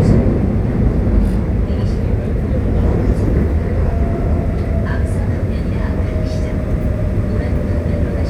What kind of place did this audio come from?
subway train